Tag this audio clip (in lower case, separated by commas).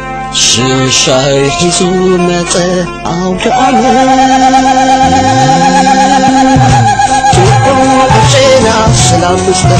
folk music, music